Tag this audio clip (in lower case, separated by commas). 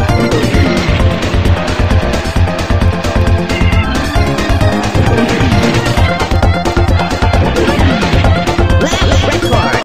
speech, music